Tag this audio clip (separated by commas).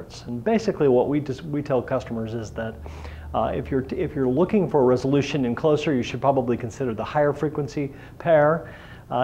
Speech